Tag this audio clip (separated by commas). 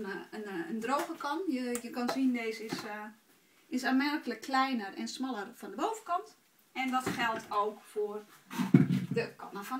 Speech